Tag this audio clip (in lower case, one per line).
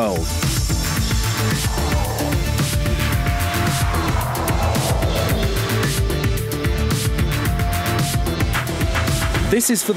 speech
music